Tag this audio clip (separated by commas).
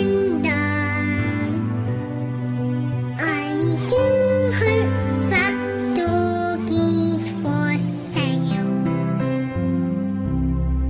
Child singing, Music